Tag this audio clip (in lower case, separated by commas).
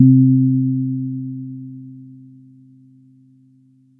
keyboard (musical), piano, musical instrument, music